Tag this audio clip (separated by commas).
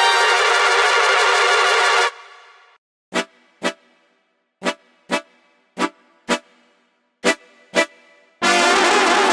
Music